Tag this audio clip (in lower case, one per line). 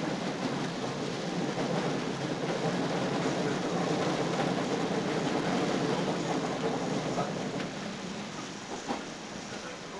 rail transport
vehicle
train